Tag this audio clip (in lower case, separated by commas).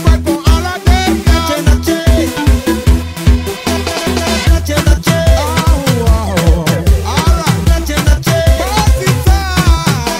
dance music, pop music, music